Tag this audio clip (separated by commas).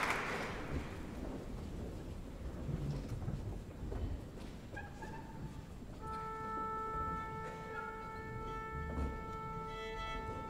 Musical instrument, Music, Violin